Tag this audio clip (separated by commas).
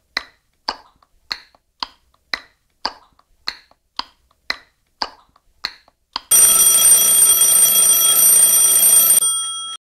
Tick-tock